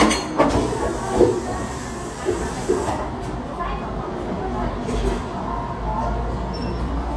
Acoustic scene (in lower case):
cafe